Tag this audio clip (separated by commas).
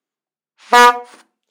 Alarm, Vehicle, honking, Car, Motor vehicle (road)